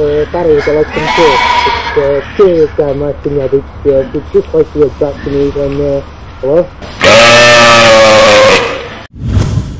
A person speaking in a foreign language around some sheep